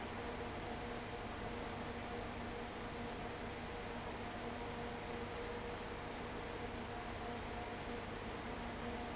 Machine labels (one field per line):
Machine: fan